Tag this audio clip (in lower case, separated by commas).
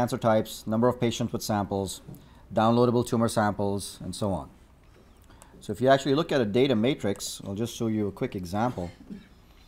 speech